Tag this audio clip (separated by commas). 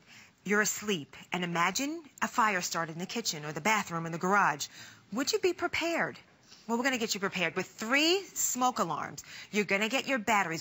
Speech